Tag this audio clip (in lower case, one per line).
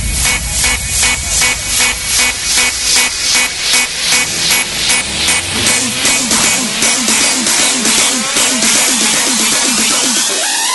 electronic dance music
electronic music
music